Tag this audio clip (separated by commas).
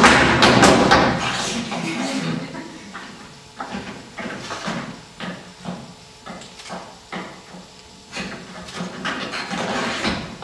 inside a large room or hall